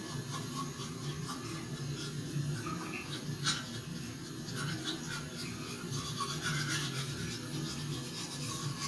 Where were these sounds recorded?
in a restroom